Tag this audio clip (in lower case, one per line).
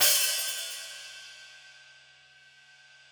cymbal
hi-hat
percussion
music
musical instrument